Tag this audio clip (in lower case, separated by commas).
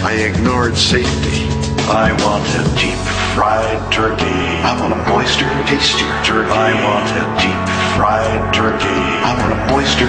music